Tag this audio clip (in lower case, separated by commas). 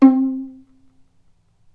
bowed string instrument, musical instrument, music